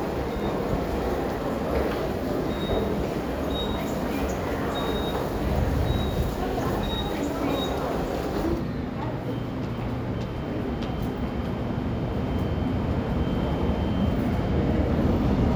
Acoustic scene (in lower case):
subway station